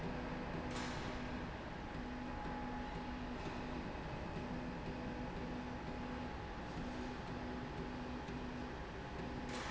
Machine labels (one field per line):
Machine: slide rail